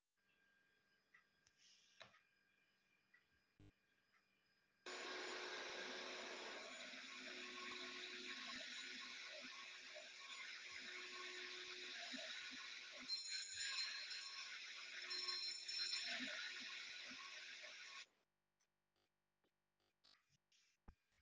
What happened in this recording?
A vacuum cleaner is running in the living room, then a bell rings.